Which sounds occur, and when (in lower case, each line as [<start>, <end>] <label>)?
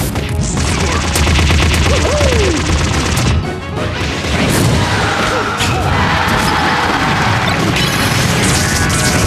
[0.00, 9.25] video game sound
[0.13, 0.35] sound effect
[0.52, 3.33] sound effect
[3.69, 5.23] sound effect
[5.58, 9.25] sound effect